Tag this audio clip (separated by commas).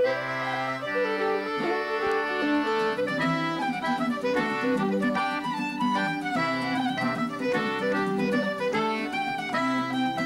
Music